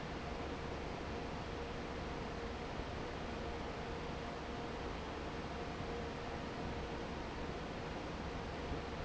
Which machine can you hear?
fan